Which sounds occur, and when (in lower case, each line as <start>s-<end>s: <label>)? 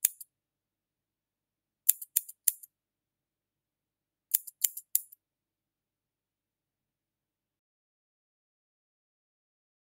0.0s-0.2s: scissors
1.8s-2.0s: scissors
2.1s-2.3s: scissors
2.4s-2.6s: scissors
4.3s-4.4s: scissors
4.6s-4.7s: scissors
4.9s-5.1s: scissors